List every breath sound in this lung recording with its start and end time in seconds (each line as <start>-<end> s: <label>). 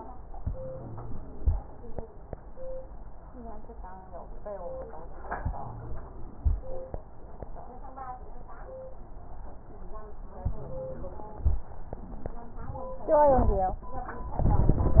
0.41-1.52 s: inhalation
5.45-6.57 s: inhalation
10.48-11.60 s: inhalation